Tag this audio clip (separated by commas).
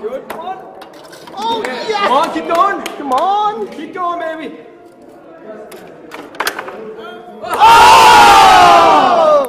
Speech